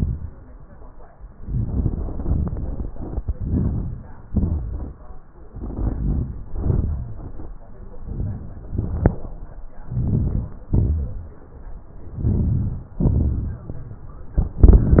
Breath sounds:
3.32-4.02 s: inhalation
4.34-4.91 s: exhalation
5.58-6.26 s: inhalation
6.60-7.21 s: exhalation
9.96-10.51 s: inhalation
10.76-11.31 s: exhalation
12.18-12.86 s: inhalation
13.05-13.66 s: exhalation

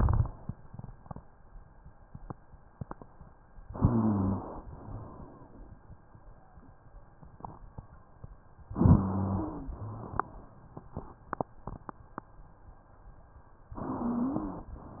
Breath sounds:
3.66-4.61 s: inhalation
3.66-4.61 s: wheeze
4.67-5.79 s: exhalation
4.74-5.22 s: wheeze
8.77-9.72 s: inhalation
8.77-9.72 s: wheeze
9.73-10.21 s: wheeze
9.73-10.68 s: exhalation
13.81-14.76 s: inhalation
13.81-14.76 s: wheeze

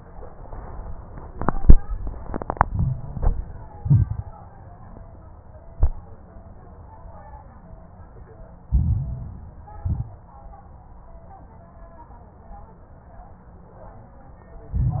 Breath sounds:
2.66-3.65 s: inhalation
2.66-3.65 s: crackles
3.74-4.37 s: exhalation
3.74-4.37 s: crackles
8.66-9.73 s: inhalation
8.66-9.73 s: crackles
9.82-10.21 s: exhalation
9.82-10.21 s: crackles
14.74-15.00 s: exhalation
14.74-15.00 s: crackles

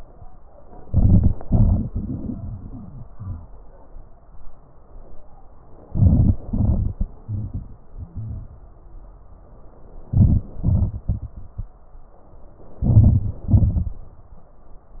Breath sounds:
0.84-1.36 s: crackles
0.86-1.38 s: inhalation
1.39-3.45 s: exhalation
2.66-3.45 s: wheeze
5.88-6.37 s: inhalation
5.88-6.37 s: crackles
6.48-8.54 s: exhalation
7.03-7.40 s: wheeze
10.12-10.50 s: inhalation
10.51-11.79 s: exhalation
10.51-11.79 s: crackles
12.85-13.44 s: inhalation
13.48-14.08 s: exhalation

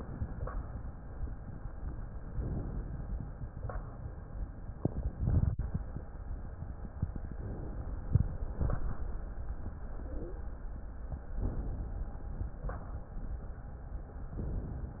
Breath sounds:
2.39-3.19 s: inhalation
7.29-8.08 s: inhalation
11.44-12.24 s: inhalation
14.38-15.00 s: inhalation

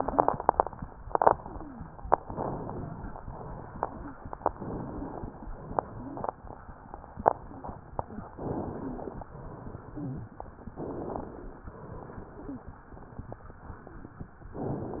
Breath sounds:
2.18-3.15 s: inhalation
3.25-4.21 s: exhalation
4.46-5.43 s: inhalation
5.52-6.49 s: exhalation
8.33-9.30 s: inhalation
9.34-10.30 s: exhalation
10.74-11.71 s: inhalation
11.74-12.71 s: exhalation

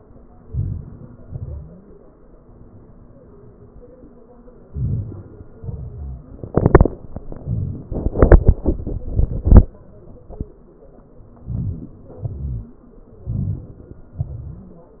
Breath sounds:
0.53-1.05 s: inhalation
1.23-1.71 s: exhalation
4.72-5.22 s: inhalation
5.54-6.04 s: exhalation
11.47-11.95 s: inhalation
12.32-12.80 s: exhalation
13.31-13.91 s: inhalation
14.22-14.69 s: exhalation

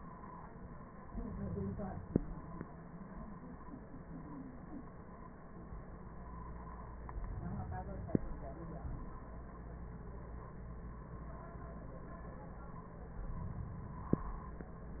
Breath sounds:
7.11-8.56 s: exhalation
13.24-14.30 s: exhalation

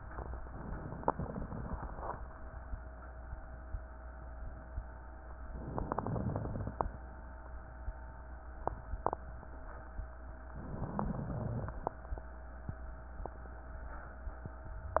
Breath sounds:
5.53-6.20 s: inhalation
5.53-6.20 s: crackles
6.21-7.01 s: exhalation
6.21-7.01 s: crackles
10.50-11.10 s: inhalation
11.10-11.84 s: exhalation
11.10-11.84 s: crackles

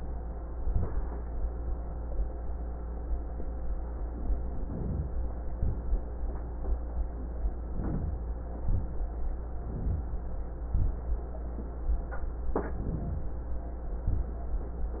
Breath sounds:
4.34-5.29 s: inhalation
7.57-8.52 s: inhalation
12.52-13.47 s: inhalation

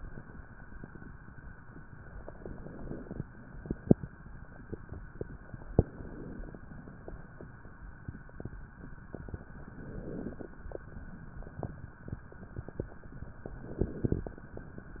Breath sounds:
2.35-3.23 s: inhalation
2.35-3.23 s: crackles
5.79-6.66 s: inhalation
5.79-6.66 s: crackles
9.62-10.49 s: inhalation
9.62-10.49 s: crackles
13.62-14.50 s: inhalation
13.62-14.50 s: crackles

